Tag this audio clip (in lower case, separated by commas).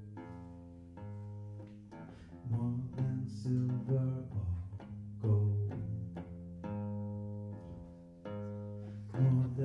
music